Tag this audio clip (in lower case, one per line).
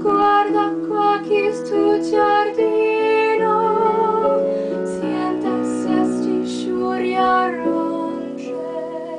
music
female singing